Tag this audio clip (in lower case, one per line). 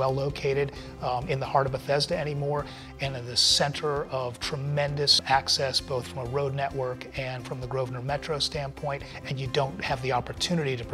speech
music